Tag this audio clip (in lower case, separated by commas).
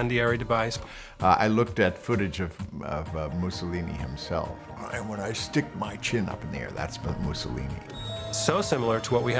music, speech